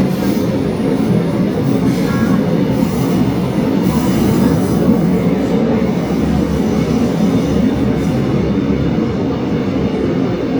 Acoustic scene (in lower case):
subway train